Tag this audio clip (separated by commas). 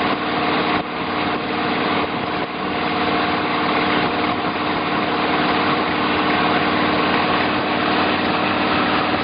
Boat, speedboat, Vehicle